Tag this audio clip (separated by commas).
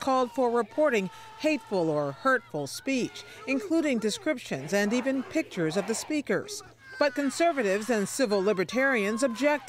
Speech